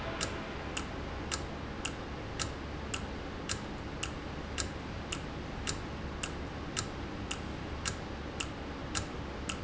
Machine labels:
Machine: valve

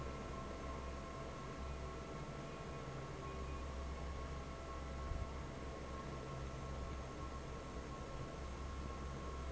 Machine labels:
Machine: fan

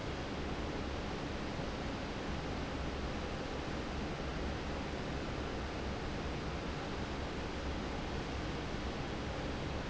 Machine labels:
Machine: fan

